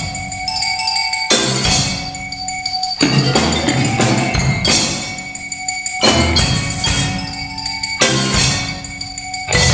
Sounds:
Bass drum, Percussion, Rimshot, xylophone, Glockenspiel, Drum kit, Mallet percussion, Drum

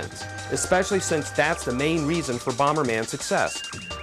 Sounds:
Music, Speech

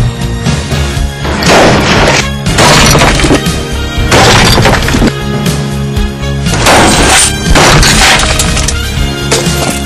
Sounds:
crash, Music

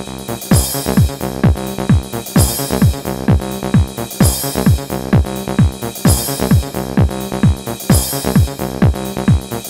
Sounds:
Music

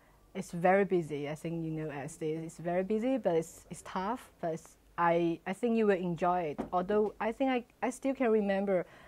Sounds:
Speech

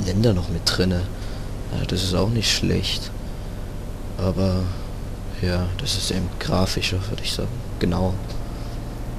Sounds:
Speech, Vehicle

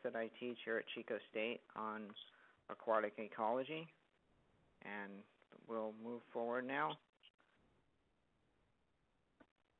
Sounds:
Speech

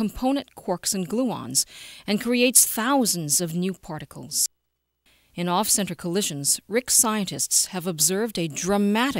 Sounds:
Speech

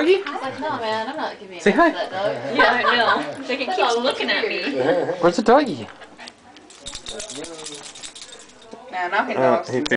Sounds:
Speech

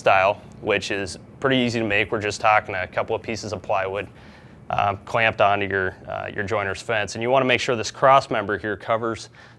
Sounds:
planing timber

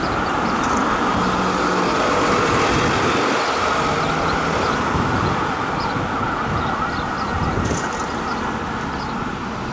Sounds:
ambulance siren

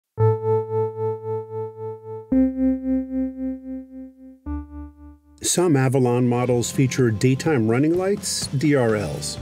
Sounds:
Speech, Music

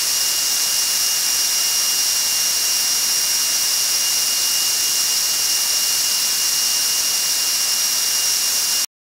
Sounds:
White noise

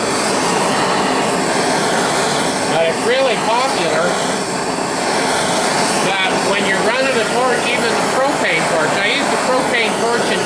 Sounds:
inside a small room, Speech

